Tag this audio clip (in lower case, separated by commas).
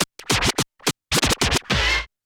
musical instrument, music, scratching (performance technique)